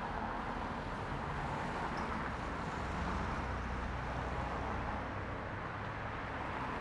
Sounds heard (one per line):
car engine accelerating
car wheels rolling
car